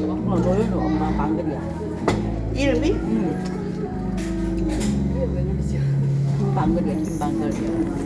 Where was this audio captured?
in a crowded indoor space